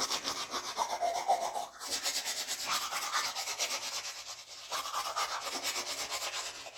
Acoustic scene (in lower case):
restroom